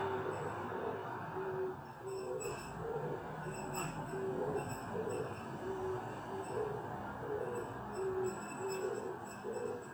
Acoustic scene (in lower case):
residential area